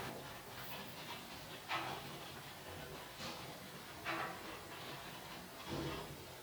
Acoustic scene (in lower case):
elevator